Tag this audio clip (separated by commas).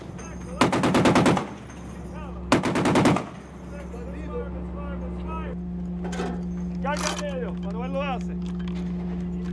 machine gun shooting